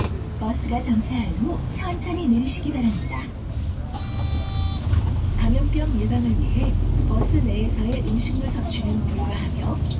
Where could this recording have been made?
on a bus